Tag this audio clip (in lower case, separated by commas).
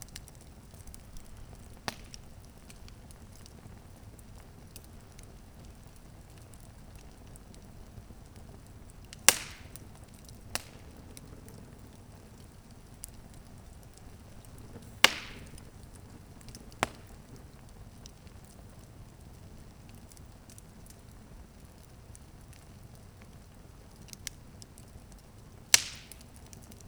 fire